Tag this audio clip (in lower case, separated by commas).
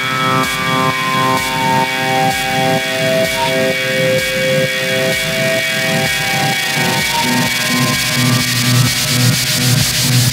car, auto racing, vehicle